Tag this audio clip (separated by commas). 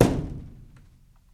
thud